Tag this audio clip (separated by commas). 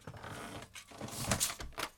Squeak